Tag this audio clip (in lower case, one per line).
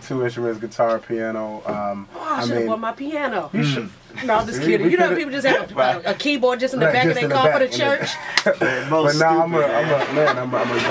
speech